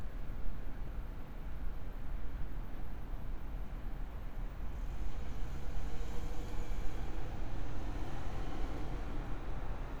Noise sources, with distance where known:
large-sounding engine, far

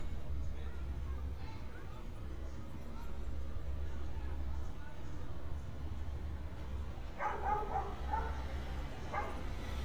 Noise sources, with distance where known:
dog barking or whining

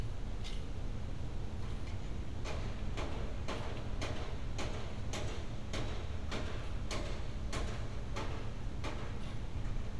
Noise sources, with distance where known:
unidentified impact machinery

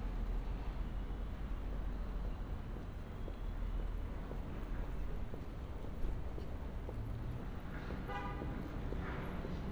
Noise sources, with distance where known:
car horn, far

